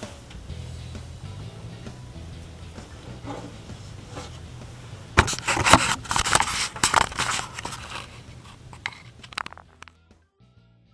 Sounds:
Music

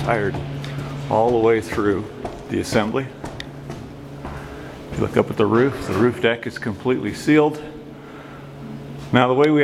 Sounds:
Speech

